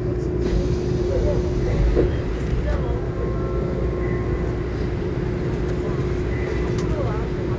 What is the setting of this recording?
subway train